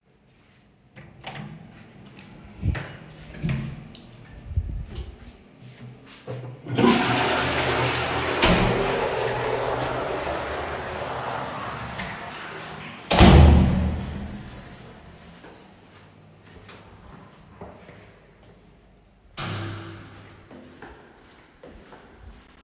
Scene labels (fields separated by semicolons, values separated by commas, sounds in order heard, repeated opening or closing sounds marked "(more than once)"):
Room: lavatory, hallway; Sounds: door (more than once), footsteps, toilet flushing